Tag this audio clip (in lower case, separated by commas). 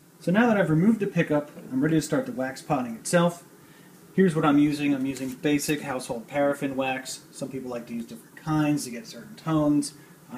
speech